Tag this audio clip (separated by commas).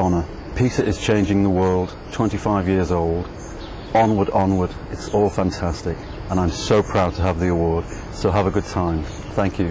Speech, man speaking, monologue